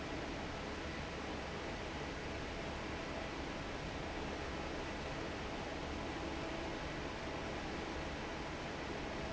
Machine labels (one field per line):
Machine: fan